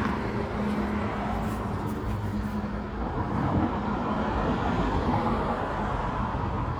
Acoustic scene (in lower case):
residential area